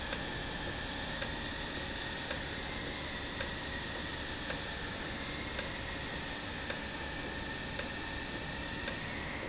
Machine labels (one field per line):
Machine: valve